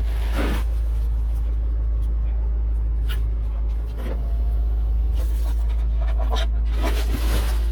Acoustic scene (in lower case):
car